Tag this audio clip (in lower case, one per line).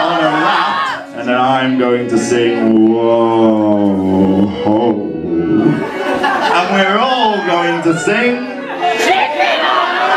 speech
music